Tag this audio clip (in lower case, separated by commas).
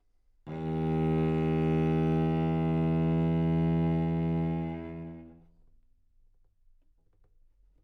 musical instrument, bowed string instrument, music